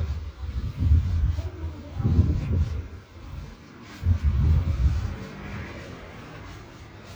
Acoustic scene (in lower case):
residential area